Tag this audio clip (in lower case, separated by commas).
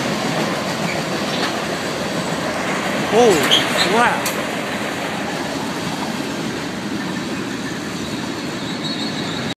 speech